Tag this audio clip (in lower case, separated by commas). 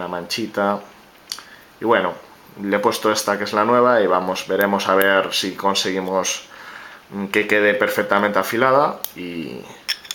speech